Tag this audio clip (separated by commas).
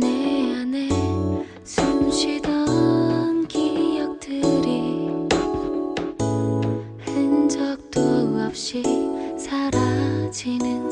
Music